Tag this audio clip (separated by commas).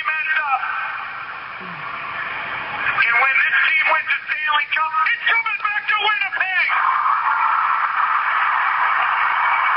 Speech, man speaking